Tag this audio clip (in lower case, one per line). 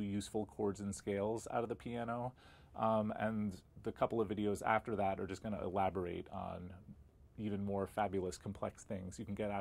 speech